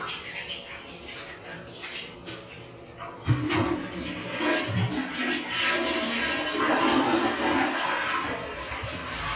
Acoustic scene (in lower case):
restroom